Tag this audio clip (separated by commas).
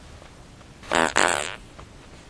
Fart